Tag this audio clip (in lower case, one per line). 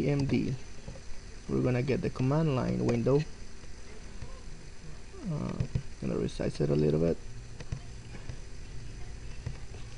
speech